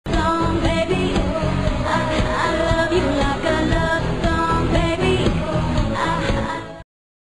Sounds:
female singing, music

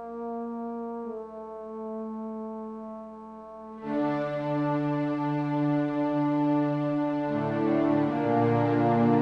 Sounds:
piano, music, musical instrument, keyboard (musical)

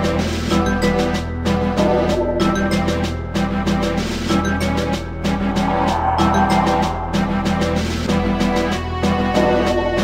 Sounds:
music

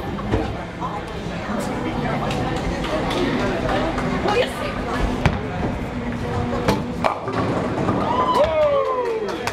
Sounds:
bowling impact

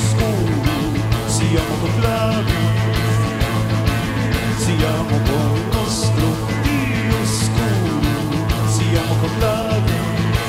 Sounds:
singing

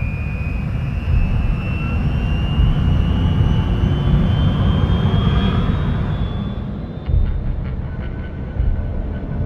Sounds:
fixed-wing aircraft

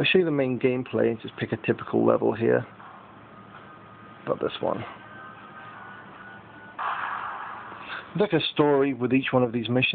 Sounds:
speech

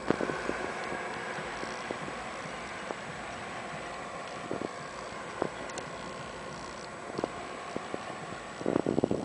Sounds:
rain on surface

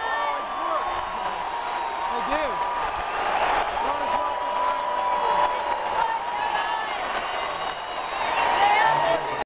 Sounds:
speech

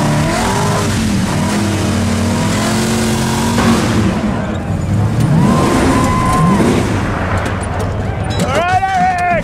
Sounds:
speech

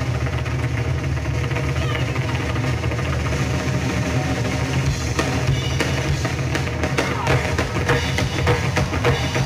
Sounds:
music

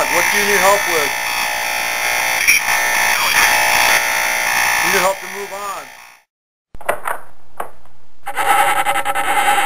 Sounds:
outside, rural or natural, speech

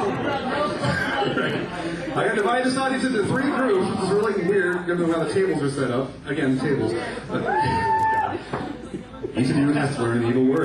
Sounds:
speech

